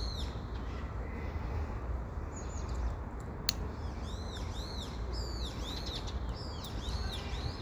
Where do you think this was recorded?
in a park